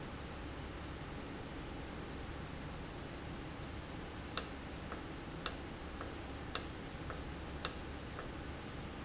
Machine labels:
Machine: valve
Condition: normal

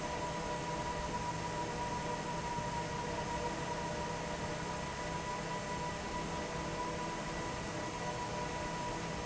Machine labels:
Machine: fan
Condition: normal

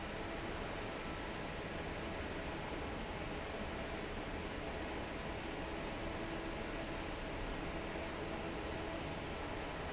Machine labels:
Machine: fan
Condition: normal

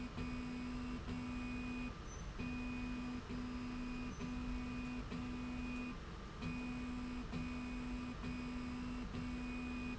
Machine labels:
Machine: slide rail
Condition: normal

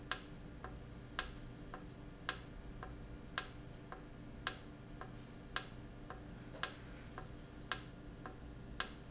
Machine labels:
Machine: valve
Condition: normal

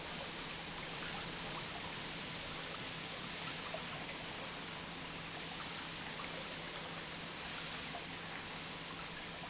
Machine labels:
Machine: pump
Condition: normal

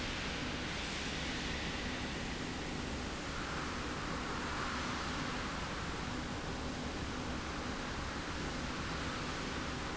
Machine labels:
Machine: slide rail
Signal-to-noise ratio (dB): -6 dB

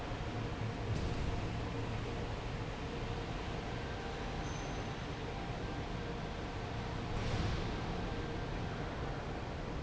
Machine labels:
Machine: fan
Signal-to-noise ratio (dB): -6 dB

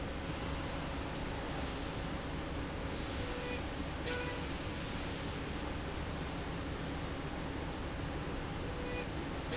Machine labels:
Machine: slide rail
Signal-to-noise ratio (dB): -6 dB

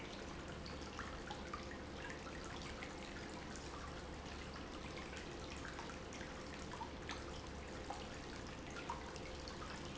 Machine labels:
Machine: pump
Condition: abnormal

